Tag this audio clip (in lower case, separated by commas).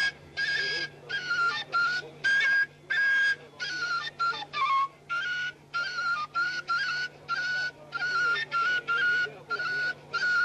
speech, music